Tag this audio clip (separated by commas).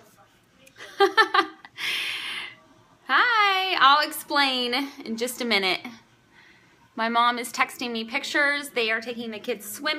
Speech